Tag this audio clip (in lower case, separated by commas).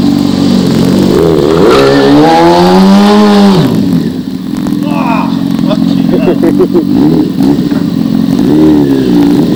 skidding, speech, vehicle